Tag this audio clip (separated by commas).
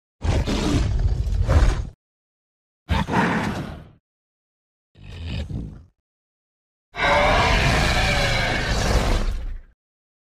Sound effect